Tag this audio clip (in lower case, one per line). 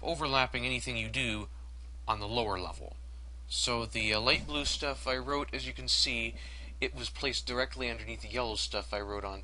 speech